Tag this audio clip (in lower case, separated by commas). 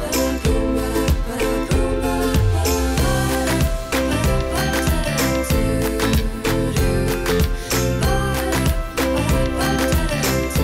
music